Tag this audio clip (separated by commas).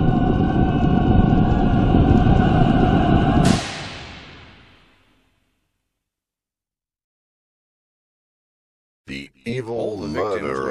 Speech